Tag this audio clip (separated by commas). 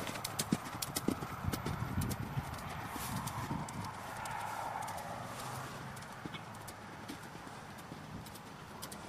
Clip-clop, Animal, horse clip-clop